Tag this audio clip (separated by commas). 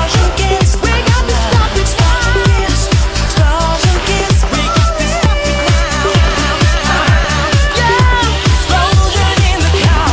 Dance music